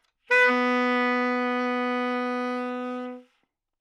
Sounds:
musical instrument, wind instrument, music

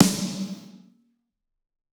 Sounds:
snare drum, drum, musical instrument, music, percussion

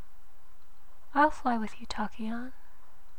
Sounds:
speech, human voice, female speech

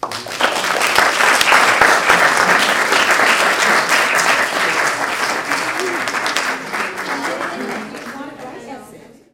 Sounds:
applause, human group actions

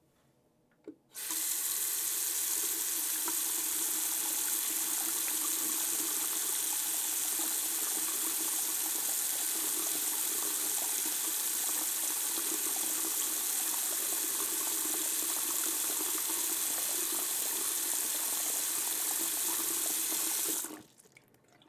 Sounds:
domestic sounds, faucet

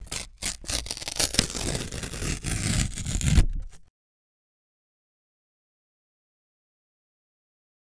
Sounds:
tearing

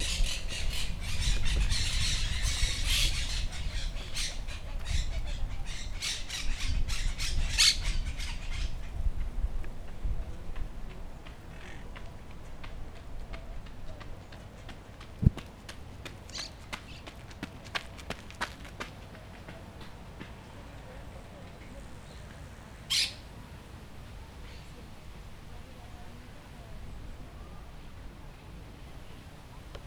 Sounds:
animal, bird, wild animals

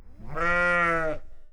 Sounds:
livestock, animal

